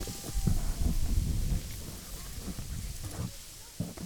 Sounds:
wind

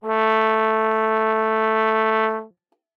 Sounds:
musical instrument, brass instrument, music

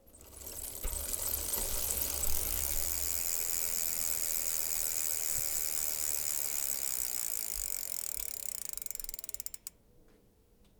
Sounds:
bicycle, vehicle

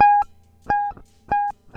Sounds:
guitar, musical instrument, plucked string instrument, music

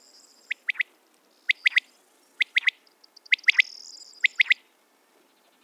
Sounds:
wild animals, bird, animal

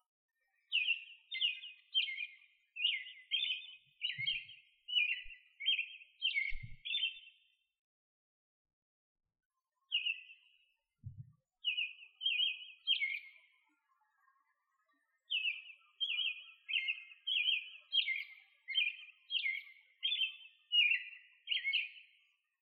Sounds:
bird vocalization, animal, bird, chirp, wild animals

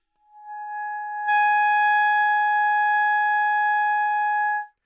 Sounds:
musical instrument, music, woodwind instrument

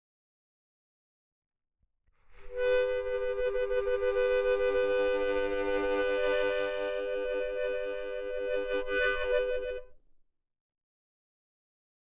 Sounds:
harmonica, musical instrument, music

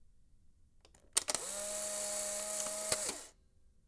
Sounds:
mechanisms, camera

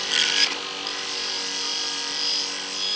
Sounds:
tools

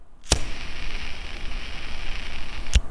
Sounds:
fire

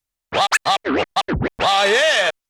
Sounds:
musical instrument, music, scratching (performance technique)

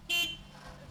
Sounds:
car horn, alarm, vehicle, motor vehicle (road), car

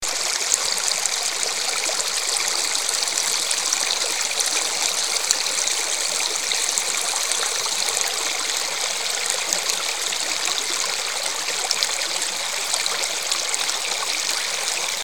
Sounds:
stream, water

